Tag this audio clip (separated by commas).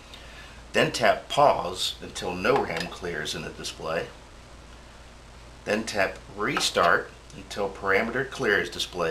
Speech